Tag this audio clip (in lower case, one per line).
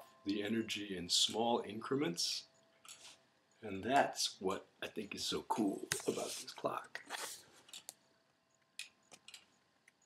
speech